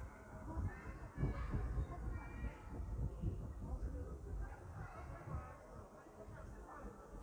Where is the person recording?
in a park